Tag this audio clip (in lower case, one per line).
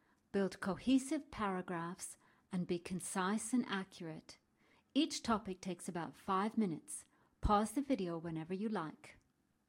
speech